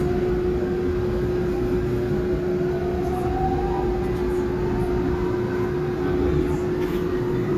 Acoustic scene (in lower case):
subway train